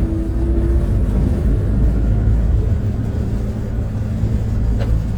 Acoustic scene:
bus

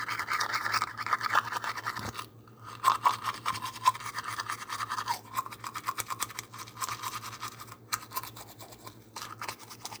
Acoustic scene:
restroom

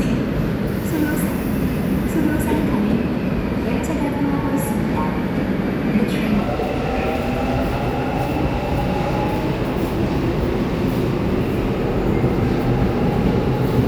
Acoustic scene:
subway station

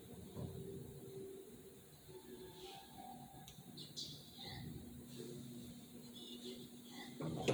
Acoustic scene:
elevator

